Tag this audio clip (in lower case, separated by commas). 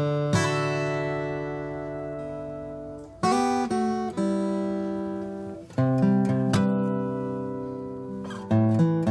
acoustic guitar, musical instrument, plucked string instrument, music, guitar, strum